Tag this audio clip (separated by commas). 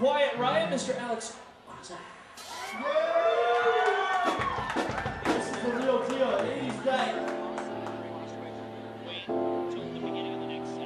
Speech, Music